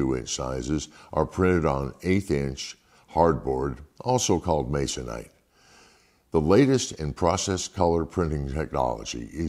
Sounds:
Speech

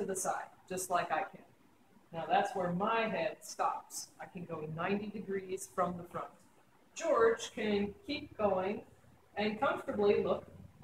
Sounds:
Speech

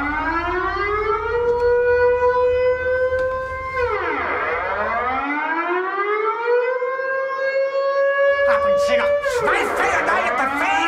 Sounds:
Speech

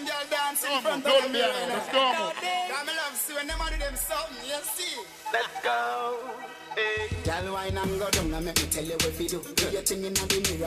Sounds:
Speech, Music

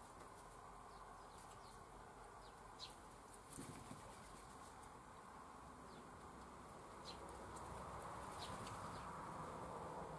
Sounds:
magpie calling

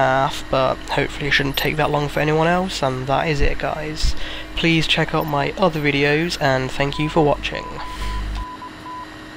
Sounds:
Speech

